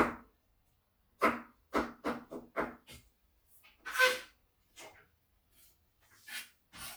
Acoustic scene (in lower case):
kitchen